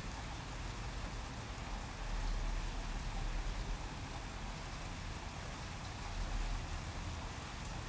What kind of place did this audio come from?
residential area